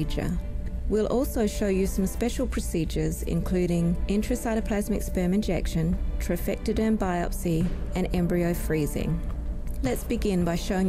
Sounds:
Speech, Music

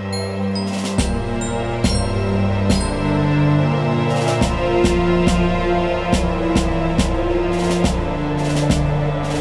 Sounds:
Music

